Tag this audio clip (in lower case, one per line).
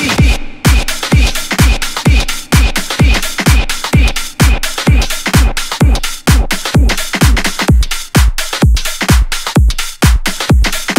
electronic music
house music
music
electronic dance music